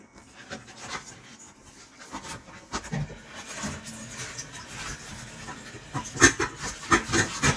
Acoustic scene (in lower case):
kitchen